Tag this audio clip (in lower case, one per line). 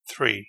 speech
man speaking
human voice